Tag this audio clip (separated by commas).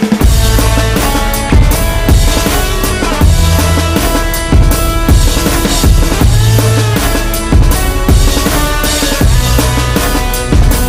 Guitar, Electric guitar, Plucked string instrument, Musical instrument, Music